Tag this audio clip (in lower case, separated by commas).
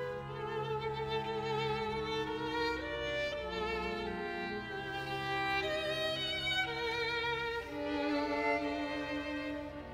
music, fiddle, musical instrument